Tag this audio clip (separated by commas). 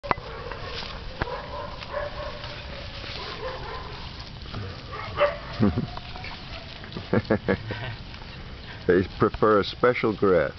pets, Goat, livestock, Speech, Animal